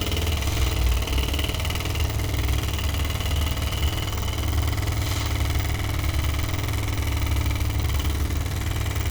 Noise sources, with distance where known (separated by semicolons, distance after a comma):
unidentified impact machinery, near